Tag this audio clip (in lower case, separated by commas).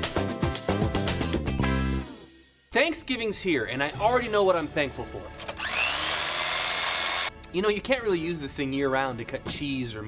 chainsaw